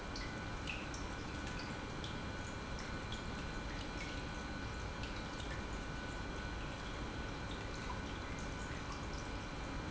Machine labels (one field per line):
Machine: pump